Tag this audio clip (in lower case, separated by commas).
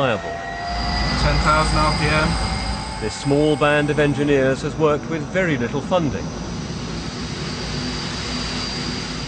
airplane, engine, jet engine, aircraft